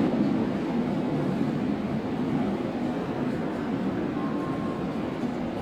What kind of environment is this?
subway station